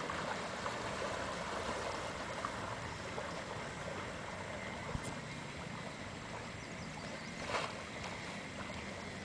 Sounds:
sailing ship

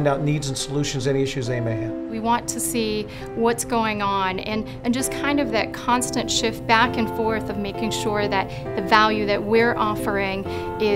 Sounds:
Speech, Music

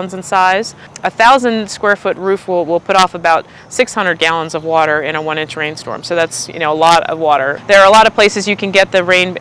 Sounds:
Speech

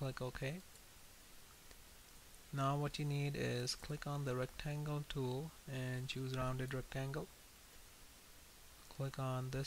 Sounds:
Speech

